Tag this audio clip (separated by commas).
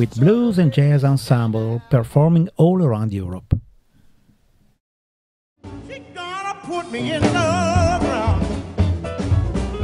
Music, Cymbal, Percussion, Drum, Blues, Drum kit, Musical instrument, Jazz, Snare drum, Speech